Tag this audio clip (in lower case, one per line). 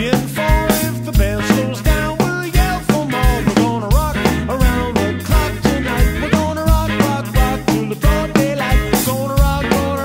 music